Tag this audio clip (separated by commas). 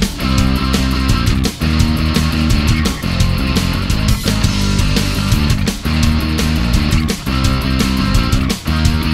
Music